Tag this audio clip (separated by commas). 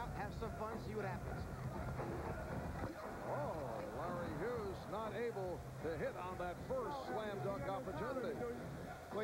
Speech